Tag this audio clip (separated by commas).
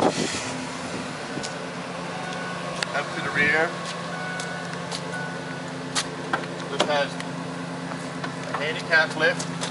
Speech